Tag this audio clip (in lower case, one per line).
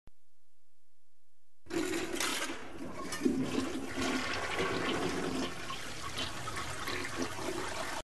toilet flush
water